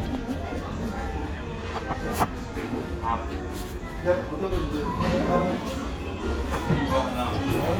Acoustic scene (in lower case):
restaurant